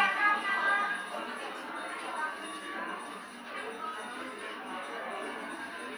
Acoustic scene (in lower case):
cafe